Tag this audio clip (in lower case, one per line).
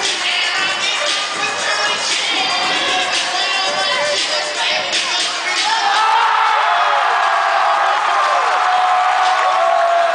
music
speech